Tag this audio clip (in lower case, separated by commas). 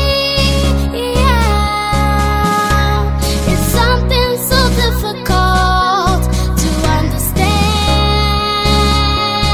music, singing